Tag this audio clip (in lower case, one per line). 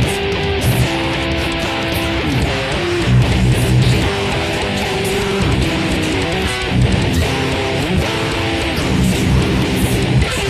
musical instrument
music
plucked string instrument
guitar
strum